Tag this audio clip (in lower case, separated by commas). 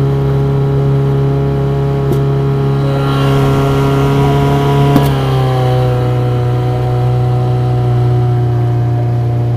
vehicle, motorboat, water vehicle